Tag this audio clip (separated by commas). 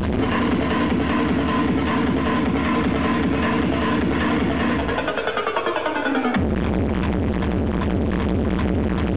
Music, Techno, Electronic music